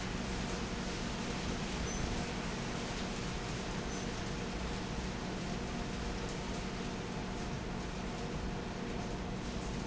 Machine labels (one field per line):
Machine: fan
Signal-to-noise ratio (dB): -6 dB